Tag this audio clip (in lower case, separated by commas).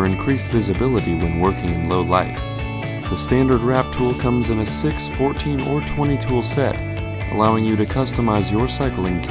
speech, music